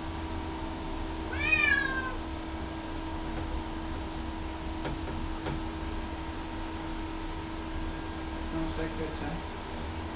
Cat meows and man speaks